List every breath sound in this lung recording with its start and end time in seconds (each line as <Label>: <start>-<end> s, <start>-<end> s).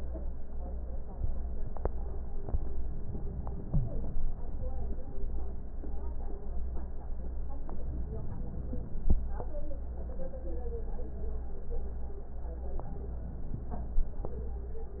Inhalation: 7.76-9.13 s, 12.65-14.03 s